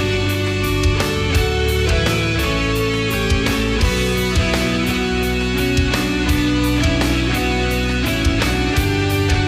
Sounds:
Progressive rock

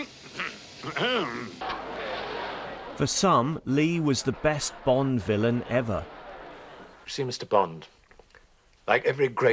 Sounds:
Speech, monologue

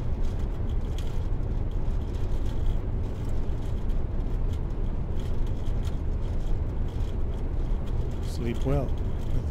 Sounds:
Speech

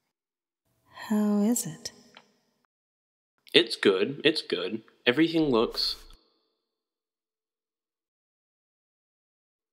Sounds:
Speech

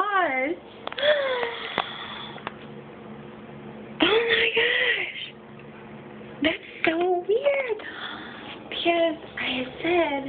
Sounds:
inside a small room, Speech

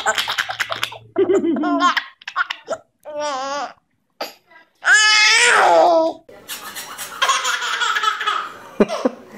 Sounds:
baby laughter

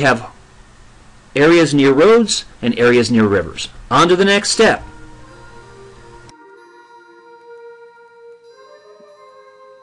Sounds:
Speech, Music

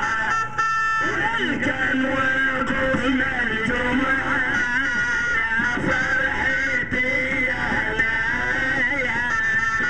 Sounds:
Music

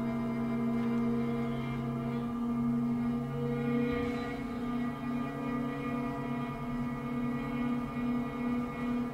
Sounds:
Music

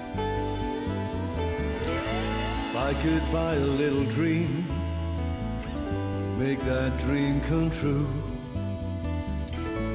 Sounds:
Music

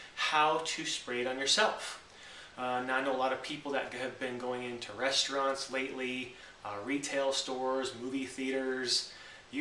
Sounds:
Speech

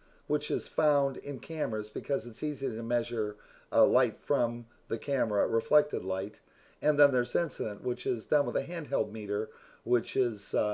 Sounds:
Speech

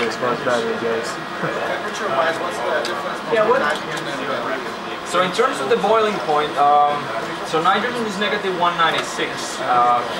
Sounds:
Speech

